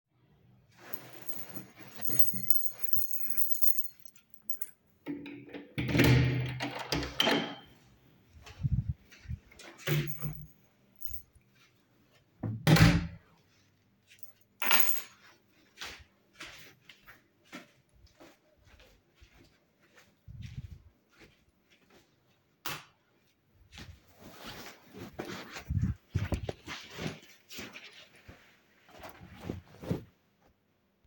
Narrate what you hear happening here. I took out my keys and opened the door, put the key on the table and walked in the hallway, then i turned the light on.